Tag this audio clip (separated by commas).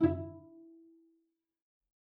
Music, Bowed string instrument, Musical instrument